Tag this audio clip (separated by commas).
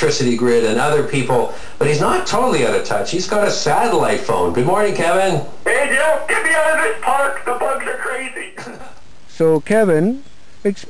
Speech